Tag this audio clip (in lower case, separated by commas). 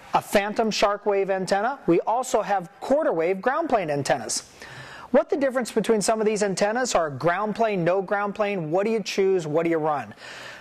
speech